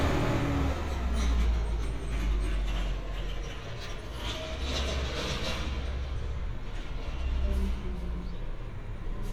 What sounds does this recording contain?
unidentified impact machinery